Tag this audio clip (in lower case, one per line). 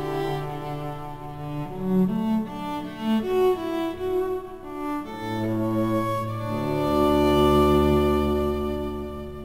music
bowed string instrument